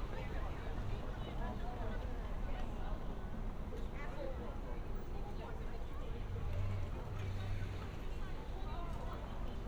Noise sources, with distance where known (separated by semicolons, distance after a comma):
unidentified human voice, far